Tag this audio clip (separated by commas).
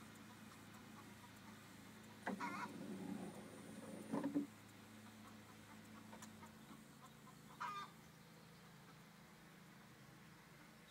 Sliding door